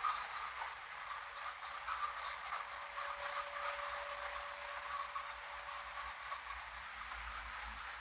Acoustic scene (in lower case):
restroom